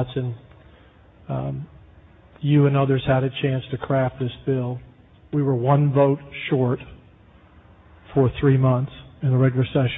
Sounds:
man speaking, Speech

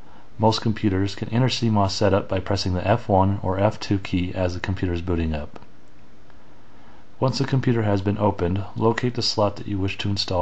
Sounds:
Speech

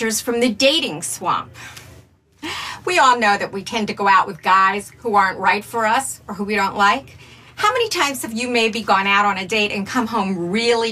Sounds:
Speech

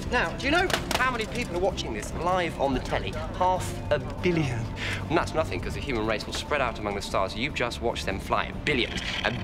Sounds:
Music, Speech

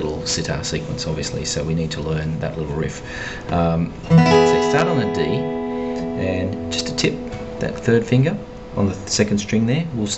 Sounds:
Speech, Music

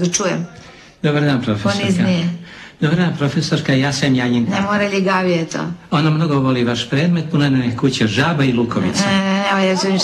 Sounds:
Speech

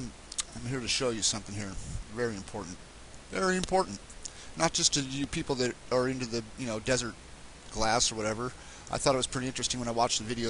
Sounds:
Speech

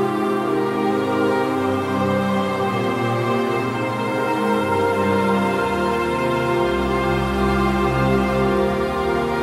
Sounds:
Music, Theme music

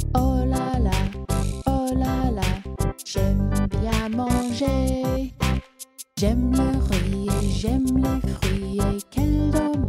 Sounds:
Music

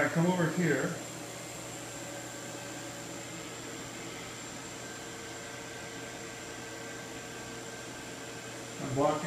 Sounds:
inside a small room, Speech

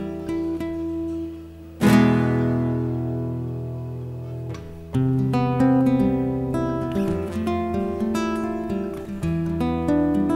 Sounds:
Music, playing acoustic guitar, Acoustic guitar

